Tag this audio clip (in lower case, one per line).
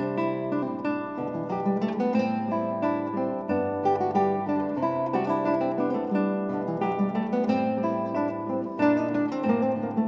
guitar
acoustic guitar
music
strum
plucked string instrument
musical instrument